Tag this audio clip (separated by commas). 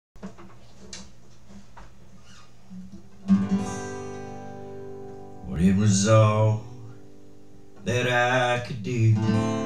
Singing, Guitar, Musical instrument, Music, Plucked string instrument